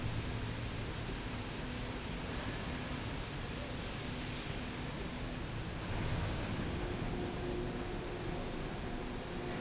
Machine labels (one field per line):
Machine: slide rail